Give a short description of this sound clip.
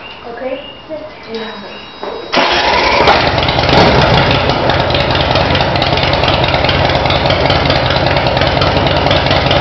A woman speaking and a motorcycle starting